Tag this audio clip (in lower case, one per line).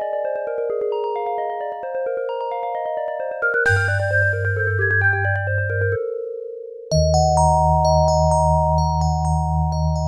music